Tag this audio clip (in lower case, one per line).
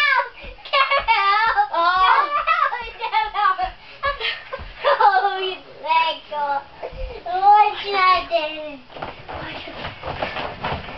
speech